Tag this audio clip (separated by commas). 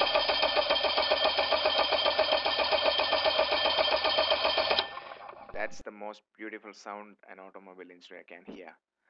car engine starting